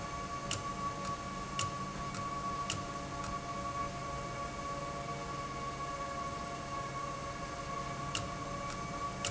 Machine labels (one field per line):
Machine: valve